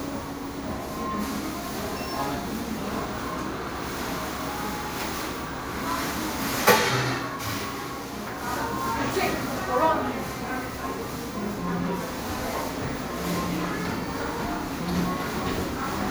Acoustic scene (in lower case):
crowded indoor space